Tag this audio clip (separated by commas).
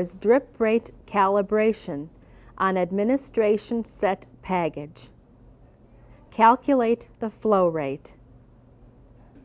Speech